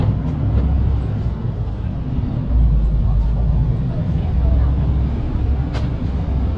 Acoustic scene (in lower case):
bus